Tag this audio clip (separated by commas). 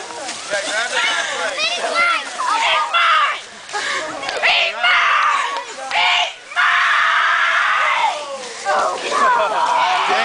Speech